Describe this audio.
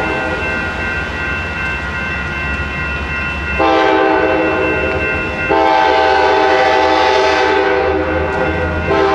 A train crossing bell is clanging, a train is rumbling, and a train horn is blowing